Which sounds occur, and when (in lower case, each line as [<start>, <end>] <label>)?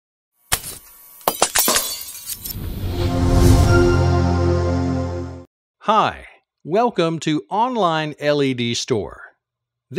[0.30, 2.85] mechanisms
[0.47, 0.73] generic impact sounds
[1.22, 2.55] shatter
[2.33, 5.45] sound effect
[5.77, 6.42] man speaking
[6.39, 6.61] tick
[6.66, 9.32] man speaking
[9.36, 9.89] background noise
[9.89, 9.95] man speaking